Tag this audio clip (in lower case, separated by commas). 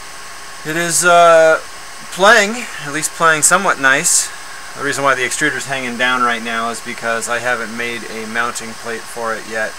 speech